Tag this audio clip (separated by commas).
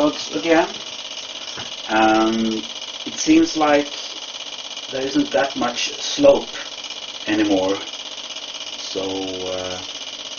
Speech, inside a small room